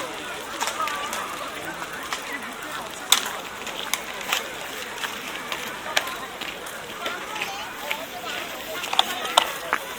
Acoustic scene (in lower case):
park